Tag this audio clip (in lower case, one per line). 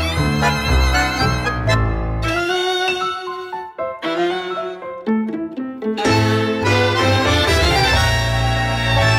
music